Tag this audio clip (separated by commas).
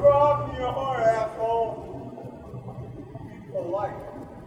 Shout, Yell, Human voice